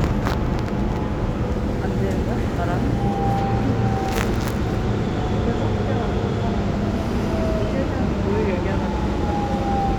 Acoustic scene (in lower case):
subway train